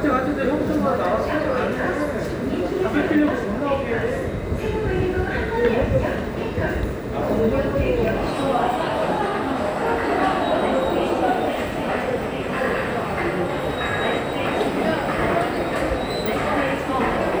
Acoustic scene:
subway station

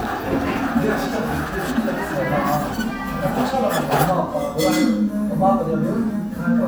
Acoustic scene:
cafe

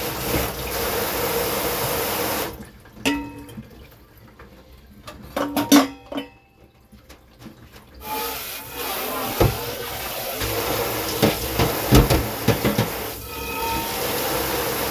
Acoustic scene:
kitchen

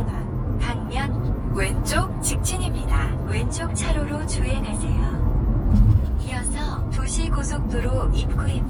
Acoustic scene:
car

